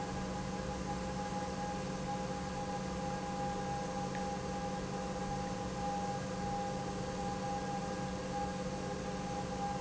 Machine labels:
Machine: pump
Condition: normal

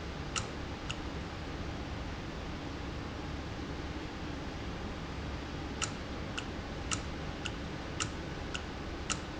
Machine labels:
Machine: valve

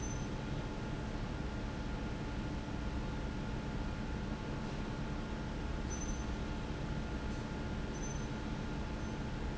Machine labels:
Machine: fan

